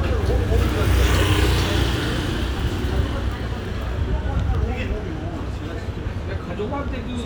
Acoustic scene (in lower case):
restaurant